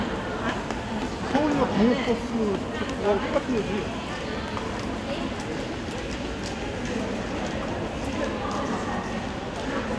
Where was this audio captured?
in a crowded indoor space